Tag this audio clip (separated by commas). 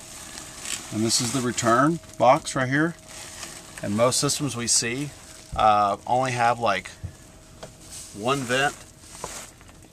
Speech